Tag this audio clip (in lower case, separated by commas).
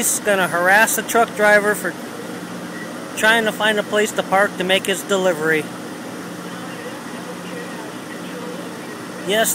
speech, truck, vehicle